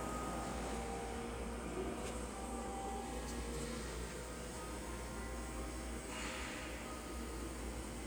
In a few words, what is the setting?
subway station